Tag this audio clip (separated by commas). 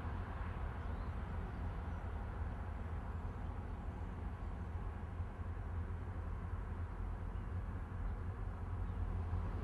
Train, Vehicle, outside, urban or man-made